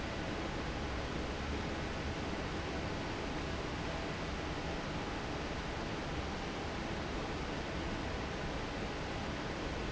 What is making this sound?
fan